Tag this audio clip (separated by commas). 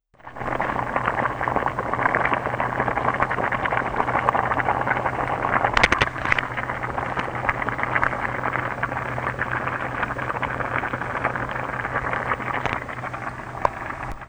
Liquid, Boiling